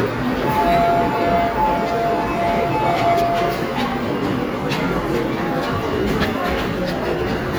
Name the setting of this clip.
subway station